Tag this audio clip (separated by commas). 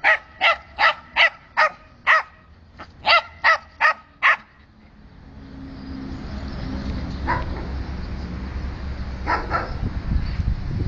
Animal, pets, Dog